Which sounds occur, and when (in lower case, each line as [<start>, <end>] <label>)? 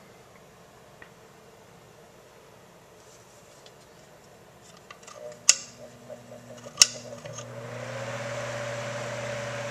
[0.00, 9.70] mechanisms
[0.28, 0.38] tick
[0.96, 1.08] generic impact sounds
[2.95, 3.60] surface contact
[3.58, 3.69] tick
[4.17, 4.25] tick
[4.60, 5.72] generic impact sounds
[5.12, 9.70] mechanical fan
[5.81, 6.31] surface contact
[6.53, 7.44] generic impact sounds